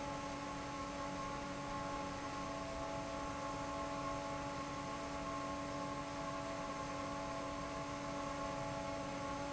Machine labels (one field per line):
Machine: fan